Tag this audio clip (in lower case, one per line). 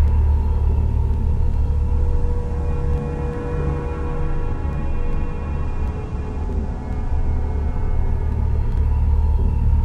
electronic music
scary music
ambient music
music
soundtrack music